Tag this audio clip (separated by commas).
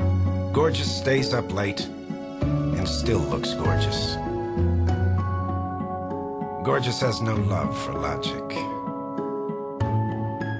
Music, Speech